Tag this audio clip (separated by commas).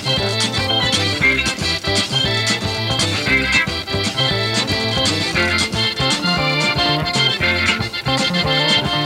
Musical instrument, Music, fiddle